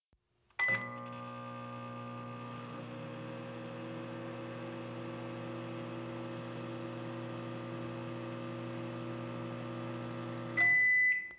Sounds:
Domestic sounds, Microwave oven

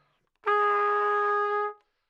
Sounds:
Music, Brass instrument, Musical instrument, Trumpet

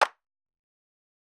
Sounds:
Hands, Clapping

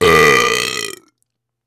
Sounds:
eructation

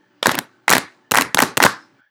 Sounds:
Hands, Clapping

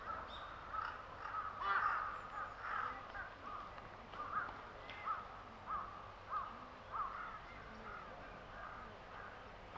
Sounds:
Animal, Crow, Bird, Wild animals

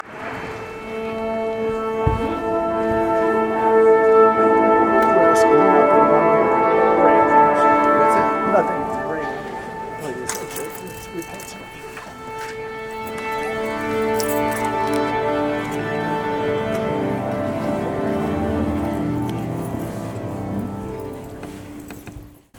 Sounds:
Musical instrument, Music

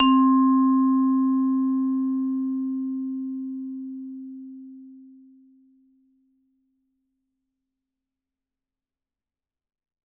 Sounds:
Musical instrument, Percussion, Mallet percussion, Music

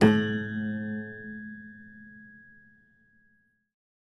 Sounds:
Keyboard (musical), Music, Piano, Musical instrument

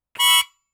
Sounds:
Musical instrument, Music, Harmonica

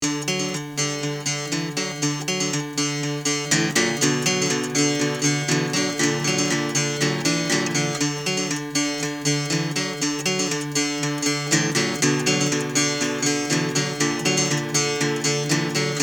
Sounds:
Guitar, Acoustic guitar, Musical instrument, Music, Plucked string instrument

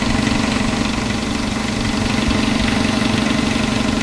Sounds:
Engine

